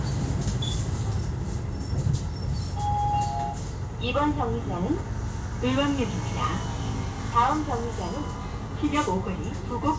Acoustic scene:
bus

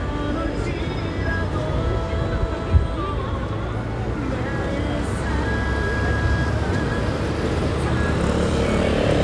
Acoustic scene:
street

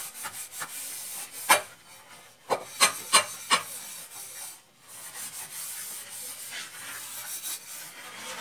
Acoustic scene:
kitchen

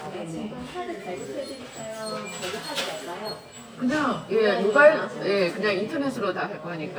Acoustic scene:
crowded indoor space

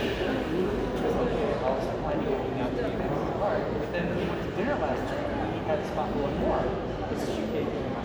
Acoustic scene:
crowded indoor space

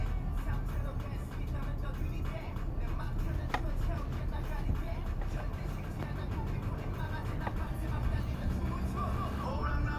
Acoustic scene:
car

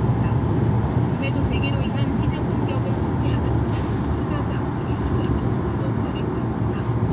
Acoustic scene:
car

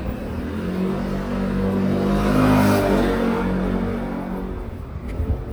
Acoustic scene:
residential area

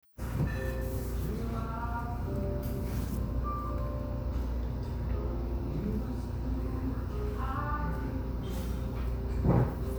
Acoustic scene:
cafe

